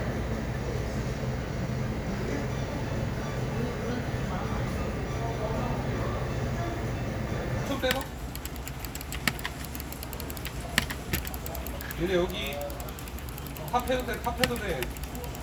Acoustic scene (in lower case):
crowded indoor space